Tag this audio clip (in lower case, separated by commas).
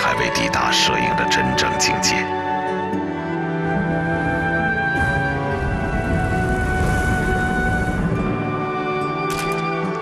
speech, music